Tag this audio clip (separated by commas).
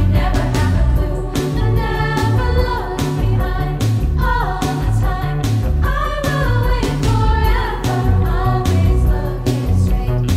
Music